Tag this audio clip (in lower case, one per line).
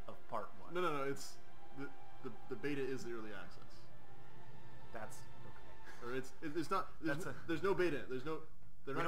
speech